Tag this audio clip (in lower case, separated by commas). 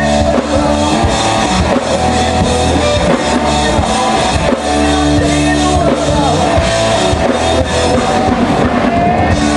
rock and roll, music